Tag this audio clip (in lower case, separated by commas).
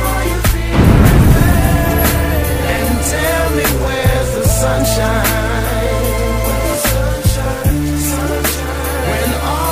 music